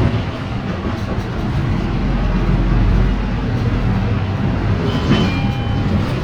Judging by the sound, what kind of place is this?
bus